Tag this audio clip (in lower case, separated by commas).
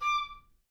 music, woodwind instrument, musical instrument